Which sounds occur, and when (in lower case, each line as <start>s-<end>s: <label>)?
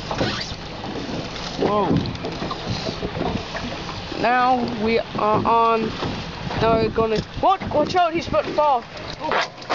0.0s-0.5s: generic impact sounds
0.0s-9.7s: boat
0.0s-9.7s: water
0.0s-9.7s: wind
1.2s-1.7s: generic impact sounds
1.5s-2.0s: man speaking
2.0s-3.4s: generic impact sounds
2.1s-2.2s: tick
3.6s-3.9s: generic impact sounds
4.1s-5.0s: man speaking
4.7s-4.7s: tick
5.1s-5.9s: man speaking
5.9s-6.3s: generic impact sounds
6.0s-6.1s: tick
6.4s-6.6s: generic impact sounds
6.5s-7.0s: wind noise (microphone)
6.6s-6.6s: tick
6.6s-7.2s: man speaking
7.4s-8.8s: man speaking
7.6s-8.7s: generic impact sounds
7.6s-8.0s: wind noise (microphone)
8.2s-8.4s: wind noise (microphone)
8.9s-9.0s: tick
9.0s-9.4s: generic impact sounds
9.2s-9.4s: man speaking
9.6s-9.7s: generic impact sounds